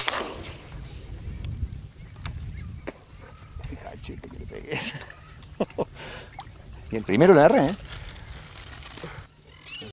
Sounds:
Animal, Duck, Quack, Speech

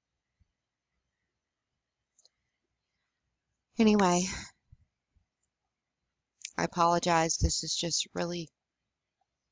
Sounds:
Speech

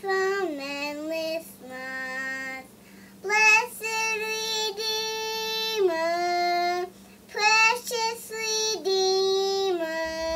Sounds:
Child singing

